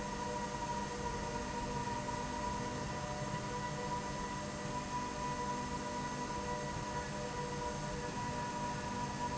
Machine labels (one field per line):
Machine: slide rail